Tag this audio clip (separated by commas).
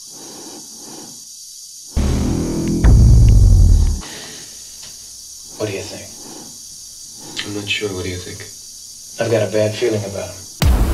Speech, Music